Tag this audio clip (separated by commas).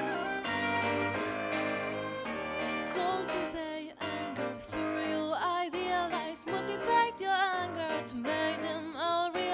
Music